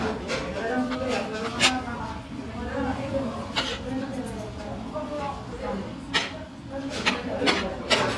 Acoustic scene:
crowded indoor space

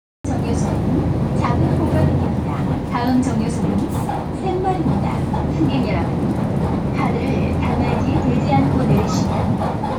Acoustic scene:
bus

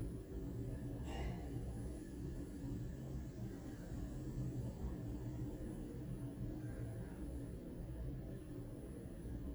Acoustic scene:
elevator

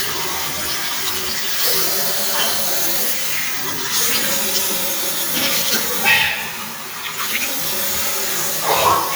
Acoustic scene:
restroom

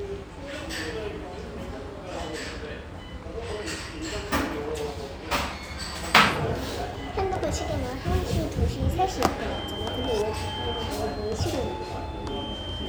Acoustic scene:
restaurant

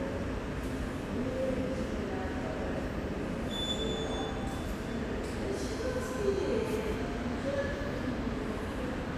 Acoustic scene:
subway station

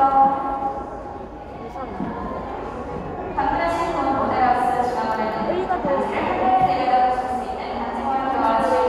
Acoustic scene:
crowded indoor space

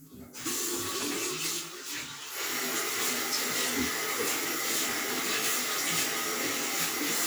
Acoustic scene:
restroom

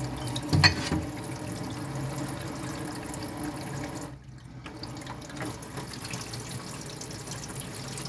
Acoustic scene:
kitchen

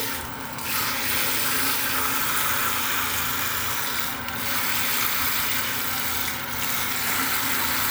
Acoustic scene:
restroom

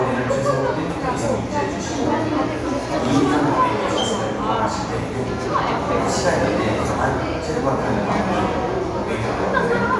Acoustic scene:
crowded indoor space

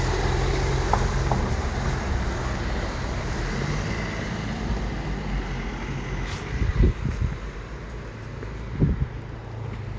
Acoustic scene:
residential area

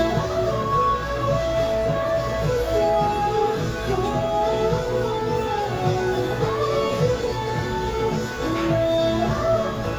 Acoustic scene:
cafe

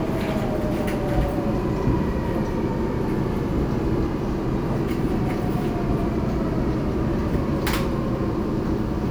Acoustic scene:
subway train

